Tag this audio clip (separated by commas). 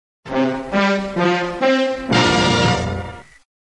Music